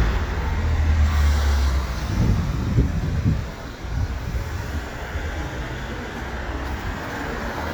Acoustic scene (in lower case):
street